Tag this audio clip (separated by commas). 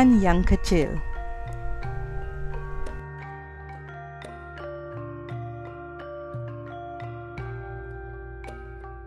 Speech, Music